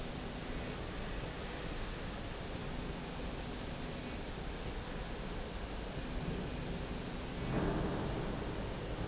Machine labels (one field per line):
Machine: slide rail